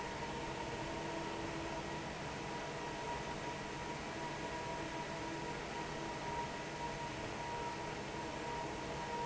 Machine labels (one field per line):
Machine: fan